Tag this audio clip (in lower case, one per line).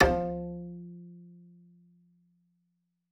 bowed string instrument
musical instrument
music